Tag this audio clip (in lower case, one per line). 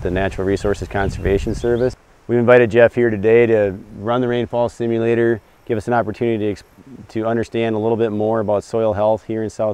speech